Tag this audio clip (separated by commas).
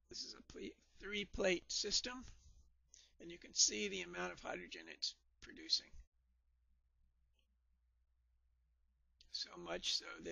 Speech